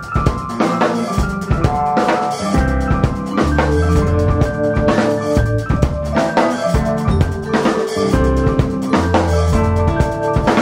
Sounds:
music

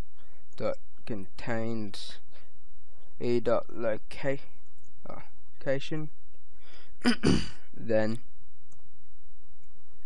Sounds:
inside a small room
speech

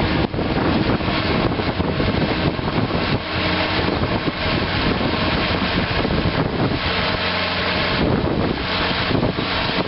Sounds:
vehicle

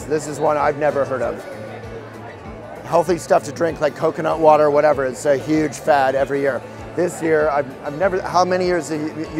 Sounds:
speech
music

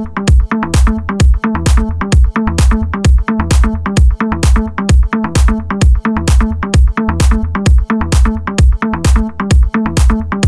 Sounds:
music

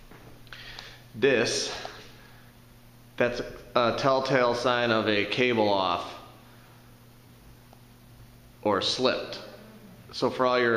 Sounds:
speech

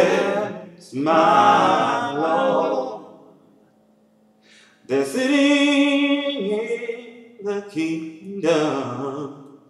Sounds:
chant
a capella

